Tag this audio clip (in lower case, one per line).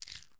crumpling